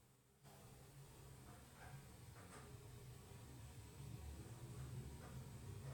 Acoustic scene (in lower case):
elevator